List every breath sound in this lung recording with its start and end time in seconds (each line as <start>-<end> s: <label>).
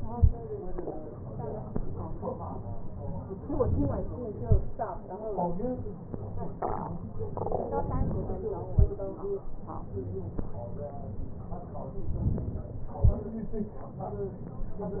7.86-8.74 s: inhalation
12.12-12.91 s: inhalation